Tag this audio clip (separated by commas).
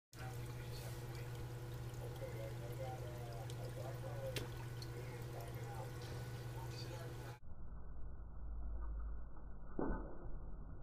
inside a small room, Silence, Speech